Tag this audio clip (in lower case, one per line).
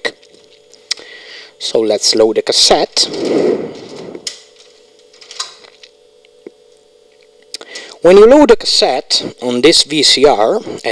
inside a small room
speech